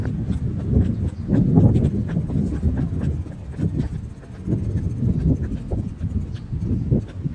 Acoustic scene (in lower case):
park